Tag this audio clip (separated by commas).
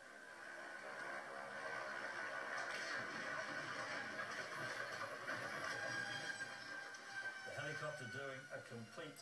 Aircraft, Helicopter, Vehicle, Speech